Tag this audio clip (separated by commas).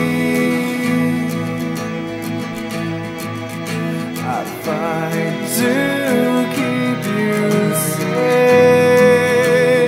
Music